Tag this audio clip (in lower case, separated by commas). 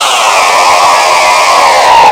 tools, sawing